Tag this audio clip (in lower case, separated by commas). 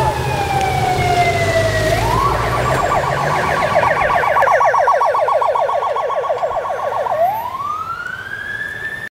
vehicle, car, police car (siren)